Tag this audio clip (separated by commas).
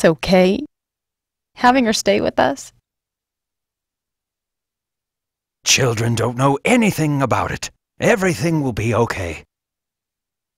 Speech